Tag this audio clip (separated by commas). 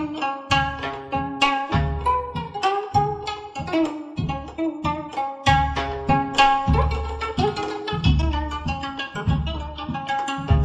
Pizzicato, Zither